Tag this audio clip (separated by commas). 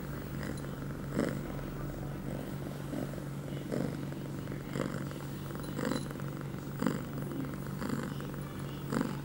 cat purring, Domestic animals, Animal, Cat, Purr